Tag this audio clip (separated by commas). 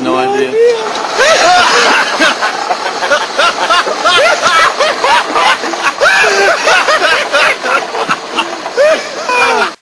Speech